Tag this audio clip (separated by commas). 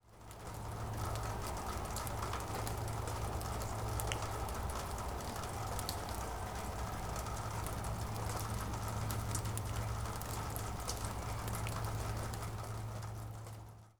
Water, Rain